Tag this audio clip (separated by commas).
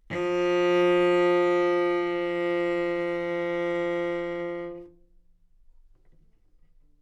Musical instrument, Music, Bowed string instrument